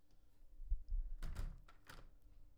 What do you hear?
window closing